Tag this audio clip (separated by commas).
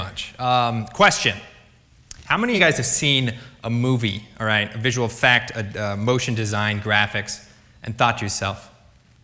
Speech, monologue, man speaking